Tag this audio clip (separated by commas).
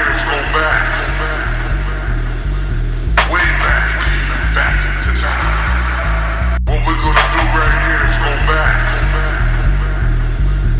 Music, Speech